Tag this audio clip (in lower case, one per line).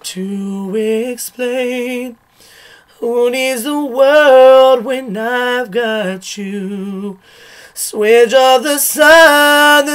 male singing